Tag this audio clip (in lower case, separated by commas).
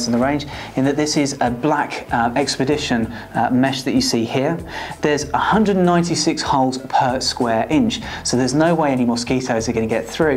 speech